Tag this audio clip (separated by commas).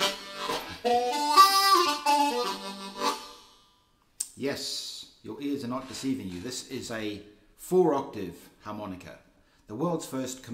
woodwind instrument, Harmonica